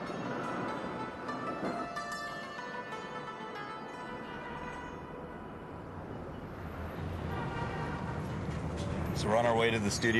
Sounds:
Speech, Music

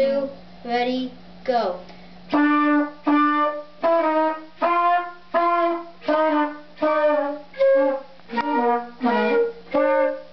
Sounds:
Brass instrument, Trumpet

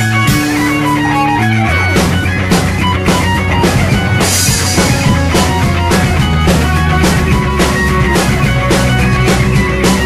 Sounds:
Music

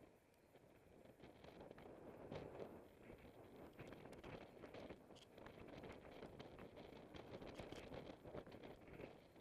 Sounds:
Vehicle, Bicycle

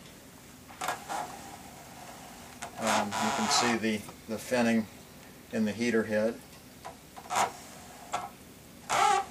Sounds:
Speech

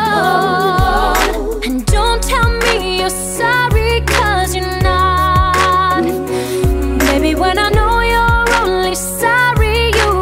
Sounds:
Singing

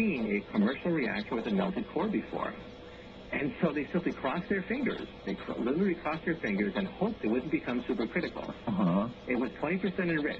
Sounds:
Speech

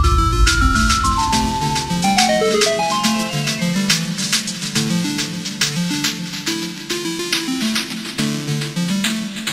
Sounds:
Music, Electronic music

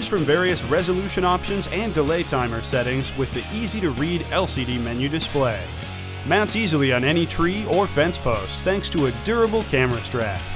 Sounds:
Speech, Music

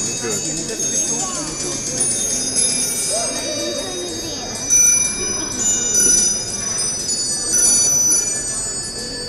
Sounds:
Speech

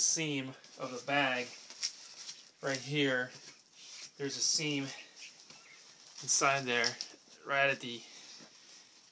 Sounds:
outside, rural or natural, Speech

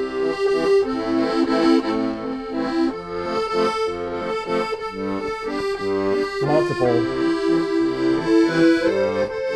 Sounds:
playing accordion

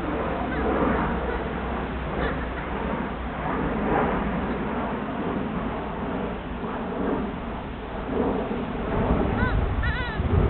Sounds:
pets, rooster, Animal

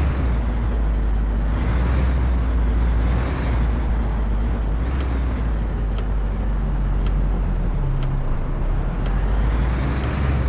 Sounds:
Vehicle

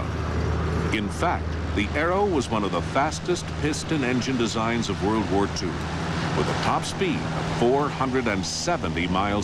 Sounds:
Speech

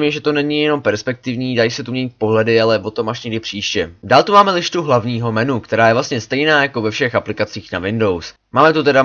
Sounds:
Speech

